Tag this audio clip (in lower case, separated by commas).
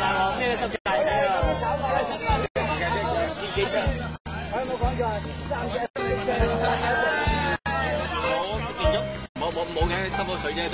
speech, music